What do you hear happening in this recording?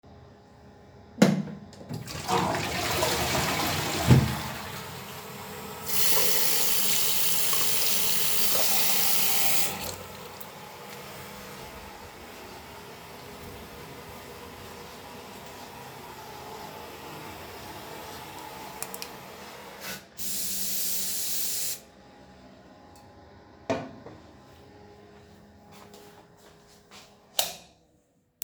I flushed the toillet, than turned the water on and washed my hands,closed water, dried hands. I sprayed scent and put it down. I exited the bathroom and turned the lights off.